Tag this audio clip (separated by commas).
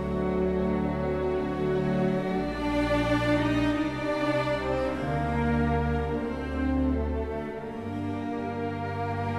Sad music, Music